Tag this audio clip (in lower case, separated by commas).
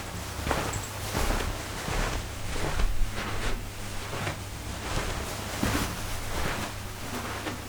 walk